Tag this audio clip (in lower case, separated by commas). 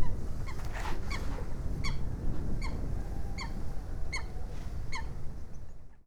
bird, animal, wild animals